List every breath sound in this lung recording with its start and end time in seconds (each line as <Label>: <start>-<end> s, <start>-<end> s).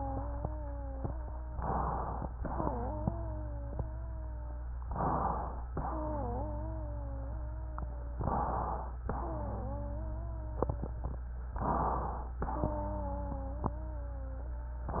Inhalation: 1.52-2.30 s, 4.82-5.60 s, 8.18-8.96 s, 11.54-12.32 s, 14.90-15.00 s
Exhalation: 2.36-2.70 s, 5.66-6.28 s, 9.08-9.70 s, 12.42-12.78 s
Wheeze: 0.00-1.54 s, 2.36-4.74 s, 5.68-8.14 s, 9.08-11.22 s, 12.44-14.88 s